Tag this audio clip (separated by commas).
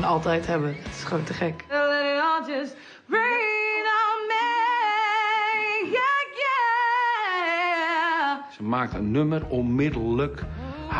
Speech